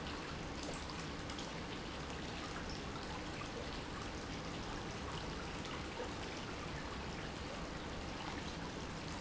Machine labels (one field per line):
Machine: pump